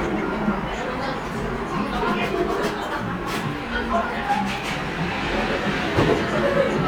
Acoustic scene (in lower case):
cafe